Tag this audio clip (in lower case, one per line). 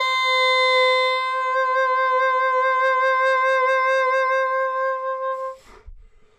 music
musical instrument
woodwind instrument